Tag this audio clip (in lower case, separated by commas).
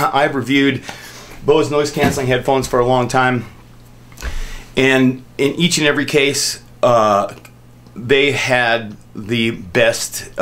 speech